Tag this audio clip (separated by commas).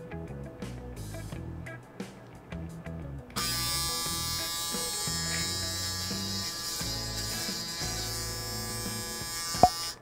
electric razor shaving